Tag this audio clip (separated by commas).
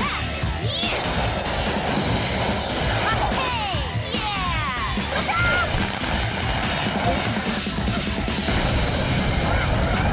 Music, Speech